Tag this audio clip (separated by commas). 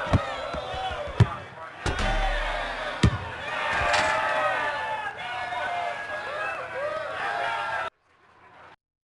Speech